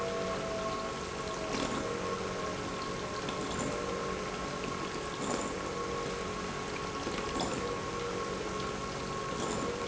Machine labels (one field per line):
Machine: pump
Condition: abnormal